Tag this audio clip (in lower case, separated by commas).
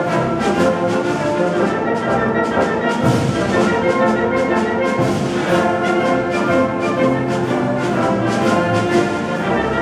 music